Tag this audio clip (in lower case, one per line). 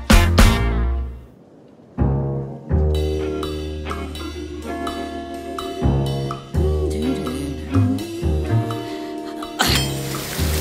music
speech